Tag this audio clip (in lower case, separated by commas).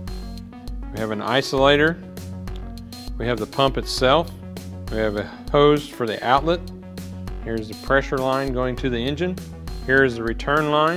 music, speech